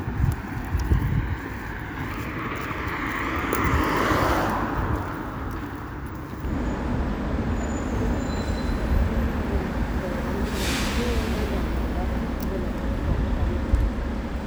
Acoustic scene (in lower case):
street